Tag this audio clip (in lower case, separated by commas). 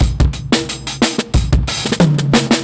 drum kit, musical instrument, percussion, drum, music